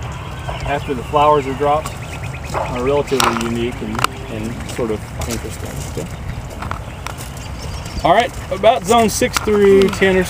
Birds chirp as a person talks nearby and footsteps crumple the ground